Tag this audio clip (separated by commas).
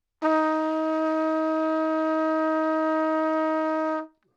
Trumpet, Brass instrument, Music, Musical instrument